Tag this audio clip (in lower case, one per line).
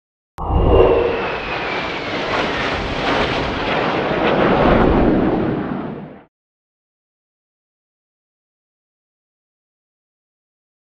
airplane flyby